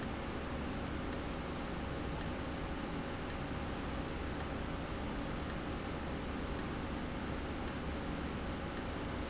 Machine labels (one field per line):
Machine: valve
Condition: abnormal